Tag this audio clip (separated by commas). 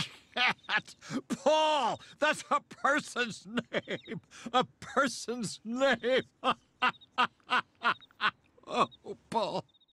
Speech